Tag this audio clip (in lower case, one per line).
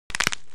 crack